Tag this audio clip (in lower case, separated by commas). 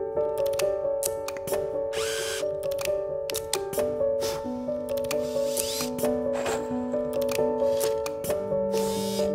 music, tools